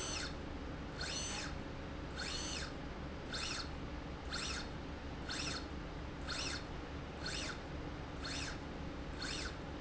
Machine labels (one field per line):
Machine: slide rail